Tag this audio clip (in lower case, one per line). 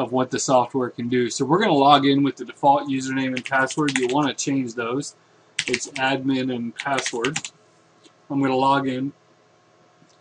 speech
typing